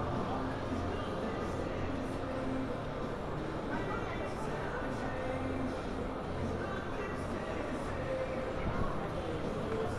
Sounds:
Music, Speech

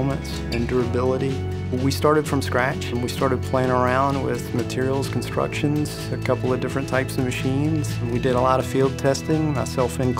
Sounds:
Speech, Music

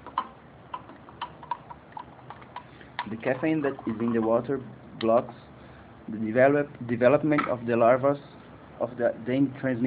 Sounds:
Speech

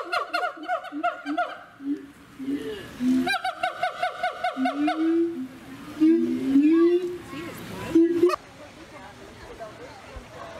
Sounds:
gibbon howling

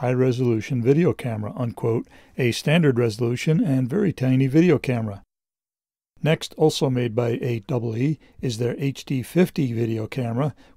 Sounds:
Speech

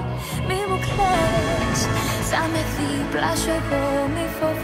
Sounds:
Music

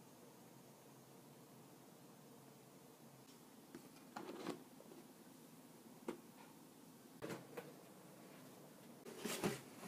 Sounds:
Silence, inside a small room

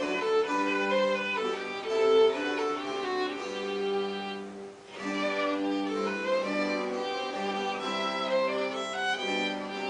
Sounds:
Musical instrument, fiddle, Music

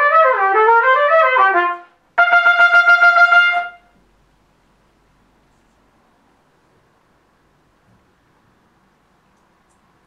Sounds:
Trumpet, Music, Musical instrument

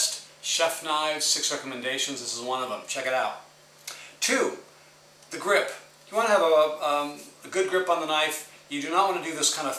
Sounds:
Speech

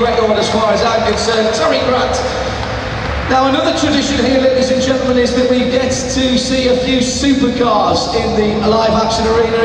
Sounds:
Speech

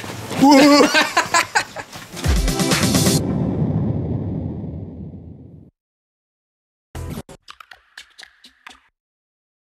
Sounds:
Music, Speech

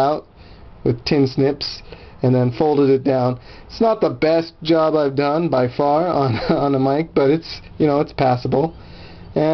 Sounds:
Speech, inside a small room

